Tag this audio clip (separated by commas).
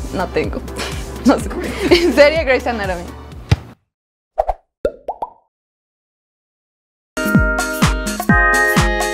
Music, Female speech, Plop, Speech